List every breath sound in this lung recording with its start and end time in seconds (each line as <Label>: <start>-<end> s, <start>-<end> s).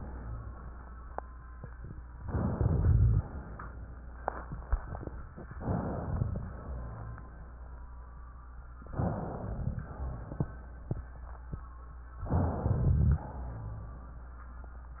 Inhalation: 2.20-3.23 s, 5.58-6.45 s, 8.90-9.89 s, 12.28-13.26 s
Rhonchi: 2.49-3.23 s, 6.68-7.38 s, 9.87-10.70 s, 13.36-14.19 s